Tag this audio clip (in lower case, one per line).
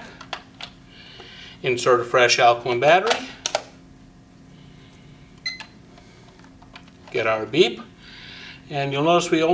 speech